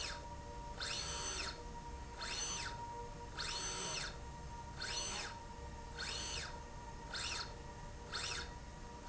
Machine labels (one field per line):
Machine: slide rail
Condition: normal